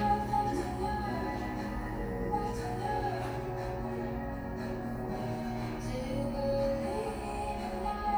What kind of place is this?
cafe